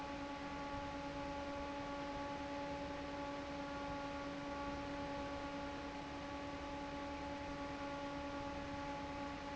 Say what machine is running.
fan